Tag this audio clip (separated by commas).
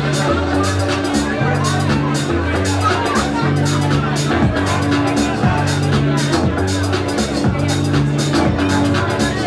Music, Speech